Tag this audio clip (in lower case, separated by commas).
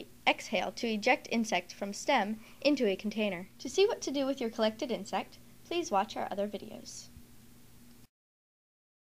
speech